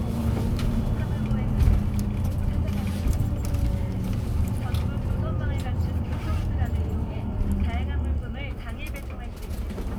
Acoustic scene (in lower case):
bus